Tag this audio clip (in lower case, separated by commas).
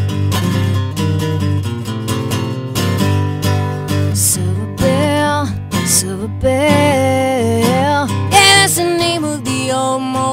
music